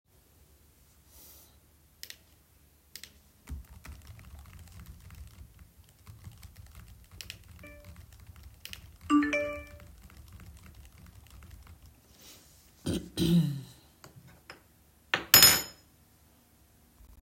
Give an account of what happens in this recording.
I was sitting at my desk typing on the keyboard,I got a notification on my phone while I was still typing. I stopped typing, coughed, and put a spoon down on the table.